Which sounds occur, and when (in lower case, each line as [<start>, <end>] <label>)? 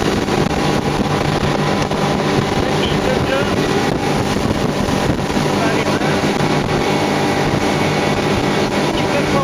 [0.00, 5.70] wind noise (microphone)
[0.00, 9.43] motorboat
[8.94, 9.43] male speech